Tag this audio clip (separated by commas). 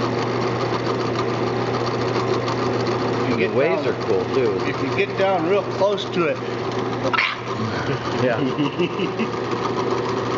Speech